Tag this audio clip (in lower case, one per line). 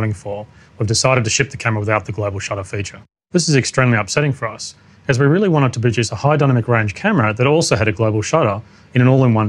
speech